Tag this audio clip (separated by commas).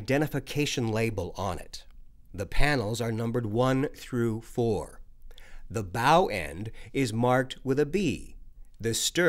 Speech